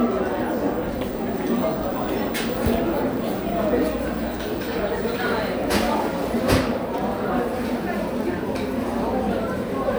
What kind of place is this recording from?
crowded indoor space